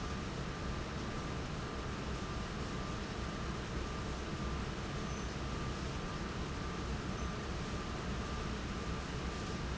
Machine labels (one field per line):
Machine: fan